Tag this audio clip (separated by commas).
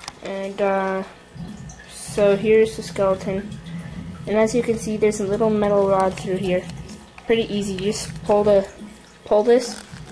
Speech